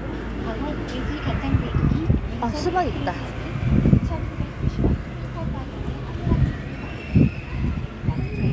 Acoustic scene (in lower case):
residential area